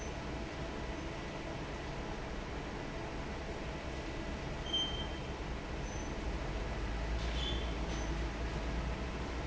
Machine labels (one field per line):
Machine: fan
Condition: normal